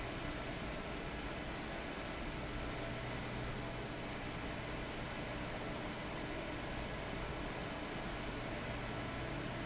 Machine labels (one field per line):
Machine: fan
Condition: abnormal